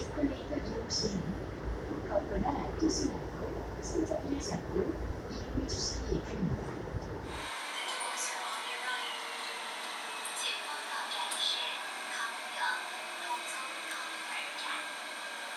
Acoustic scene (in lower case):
subway train